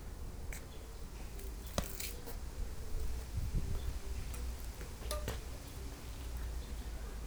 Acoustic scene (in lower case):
park